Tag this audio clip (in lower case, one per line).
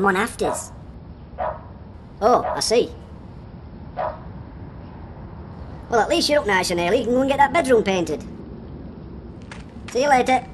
speech